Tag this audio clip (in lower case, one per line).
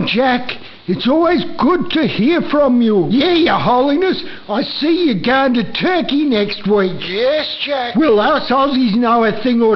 speech